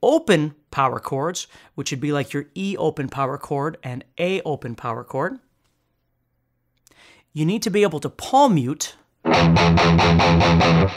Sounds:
Speech, Music

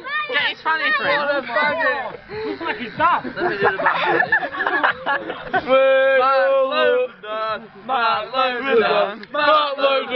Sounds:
Speech

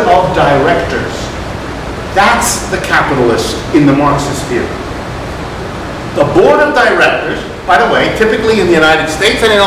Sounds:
inside a small room, Speech

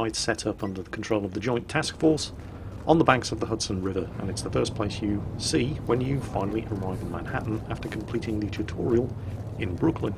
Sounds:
Speech

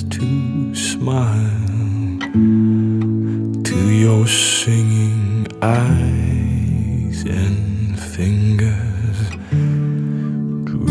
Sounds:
Music

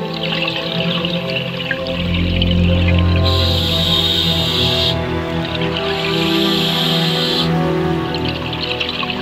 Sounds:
Music, outside, rural or natural

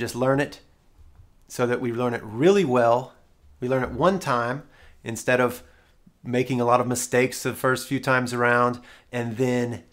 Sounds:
Speech

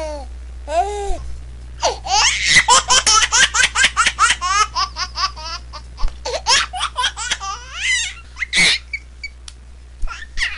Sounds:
baby laughter

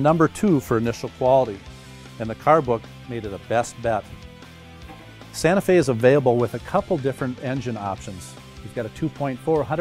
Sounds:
Music, Speech

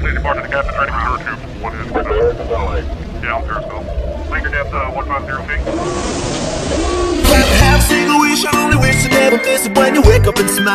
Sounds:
Speech, Music

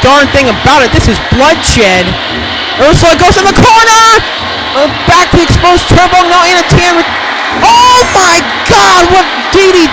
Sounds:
Speech

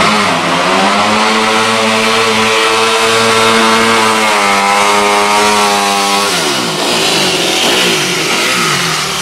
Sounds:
Car, Vehicle, Motor vehicle (road)

